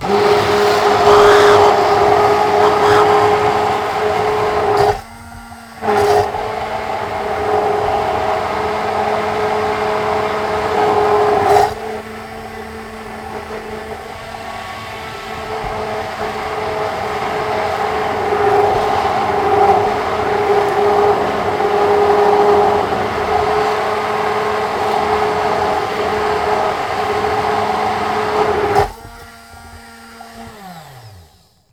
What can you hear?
beater